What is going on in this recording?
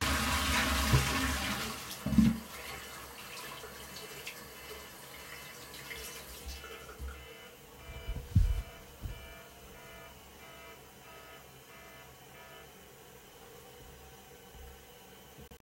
A phone alarm was ringing while I flushed the toilet and washed my hands at the sink. All sounds were audible at the same time, and the alarm became louder near the end of the toilet flush.